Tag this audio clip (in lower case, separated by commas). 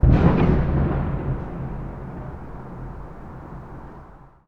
explosion, fireworks